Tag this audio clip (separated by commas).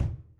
Drum, Musical instrument, Music, Bass drum, Percussion